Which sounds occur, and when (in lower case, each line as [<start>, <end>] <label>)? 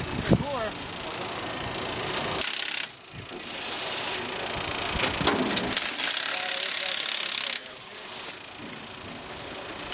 [0.00, 9.93] mechanisms
[0.00, 9.93] ratchet
[0.14, 0.39] wind noise (microphone)
[7.39, 7.50] man speaking